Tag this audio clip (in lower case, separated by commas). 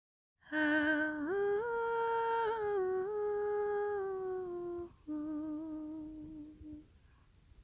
singing, female singing, human voice